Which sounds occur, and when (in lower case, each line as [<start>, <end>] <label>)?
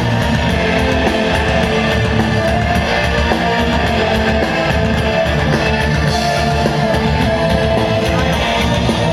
[0.00, 9.12] music